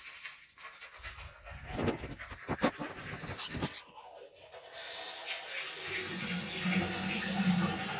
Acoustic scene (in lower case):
restroom